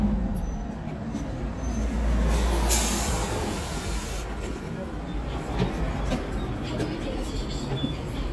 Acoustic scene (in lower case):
street